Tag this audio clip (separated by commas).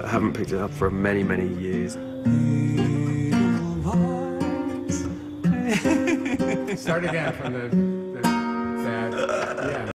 Music, Speech